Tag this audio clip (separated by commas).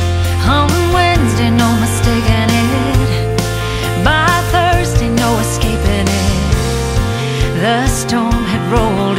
Music